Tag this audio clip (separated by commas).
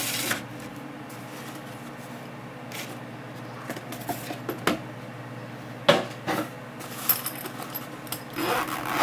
Printer